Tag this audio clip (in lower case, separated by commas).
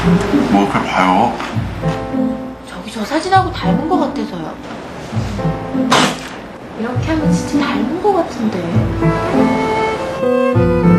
speech, music